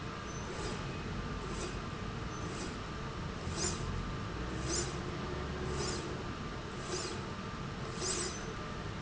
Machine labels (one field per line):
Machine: slide rail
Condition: normal